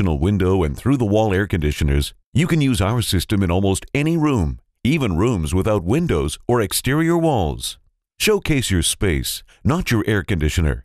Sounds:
Speech

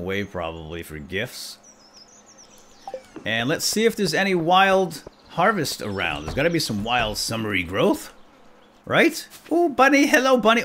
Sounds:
Speech

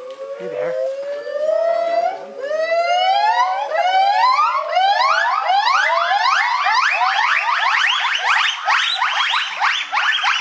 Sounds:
gibbon howling

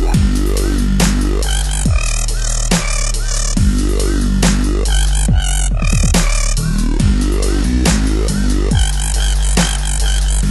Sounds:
Music

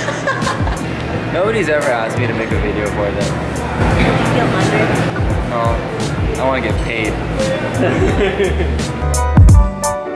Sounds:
Speech, Music

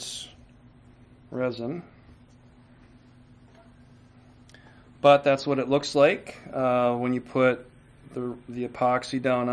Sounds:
Speech

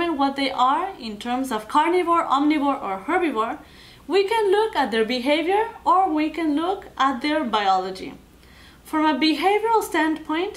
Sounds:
Speech

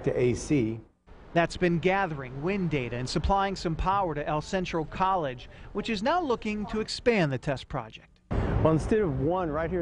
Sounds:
Speech

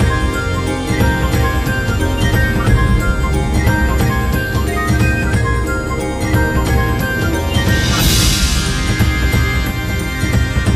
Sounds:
Music

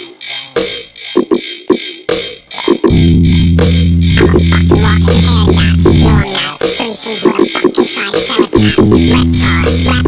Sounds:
Music

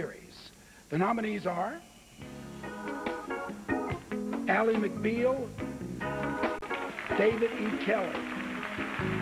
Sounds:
Speech, Music

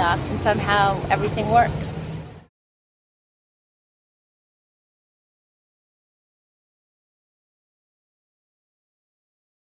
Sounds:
outside, urban or man-made, Speech, Silence

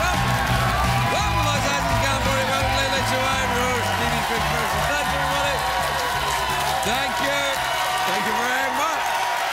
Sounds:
Speech, Music, monologue

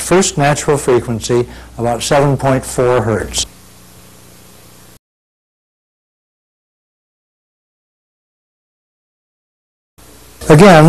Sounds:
Speech

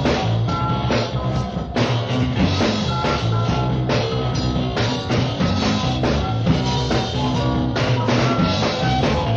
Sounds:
Music

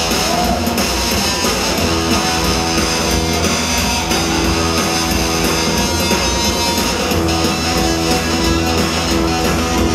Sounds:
Music

